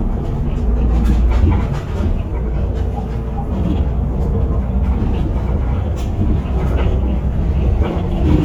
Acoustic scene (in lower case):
bus